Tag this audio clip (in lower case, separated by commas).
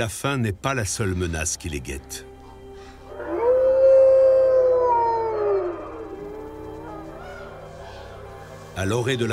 lions growling